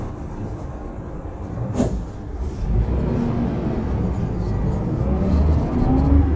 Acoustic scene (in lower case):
bus